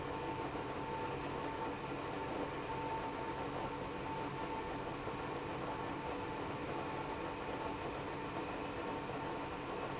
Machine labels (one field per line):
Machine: pump